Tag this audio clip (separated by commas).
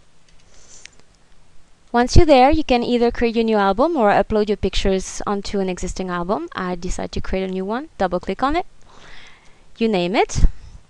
inside a small room, Speech